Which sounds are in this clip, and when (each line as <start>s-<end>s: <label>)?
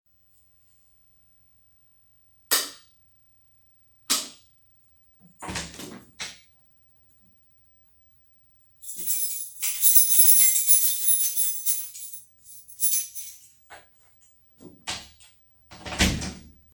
2.5s-2.9s: light switch
4.1s-4.5s: light switch
5.3s-6.5s: door
8.8s-13.4s: keys
14.8s-16.4s: door